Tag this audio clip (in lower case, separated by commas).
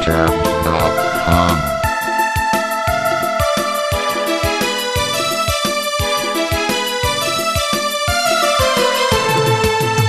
musical instrument, speech, music